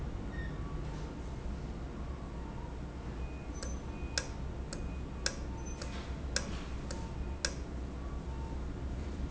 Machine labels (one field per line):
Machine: valve